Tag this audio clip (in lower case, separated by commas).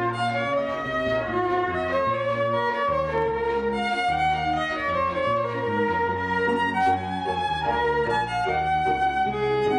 fiddle, musical instrument, music